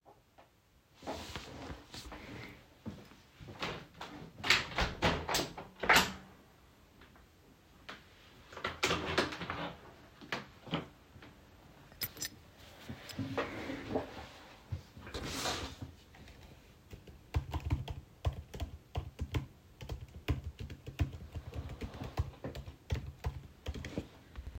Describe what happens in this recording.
I stood up, and slight chair movement is audible as I got up. I then opened the window. A small keychain sound is also audible while I was sitting down. After that, I typed on the keyboard, and the keyboard typing is clearly audible.